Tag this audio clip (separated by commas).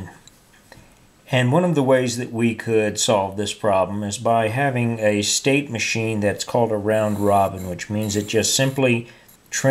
Speech